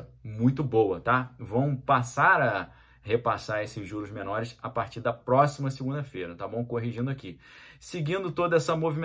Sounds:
striking pool

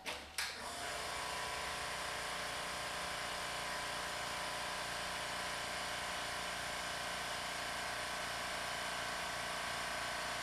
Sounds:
Tools

